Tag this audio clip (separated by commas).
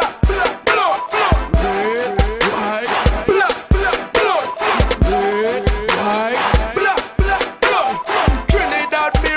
Pop music, Music, Happy music